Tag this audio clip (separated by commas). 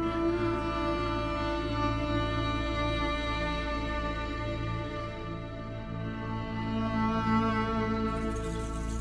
Music